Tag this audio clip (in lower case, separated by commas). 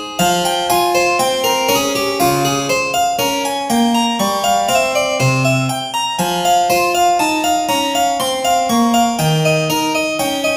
music